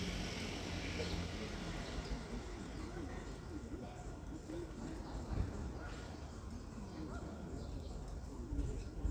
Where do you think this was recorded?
in a residential area